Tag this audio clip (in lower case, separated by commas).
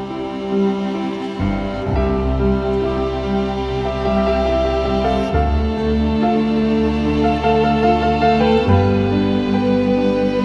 music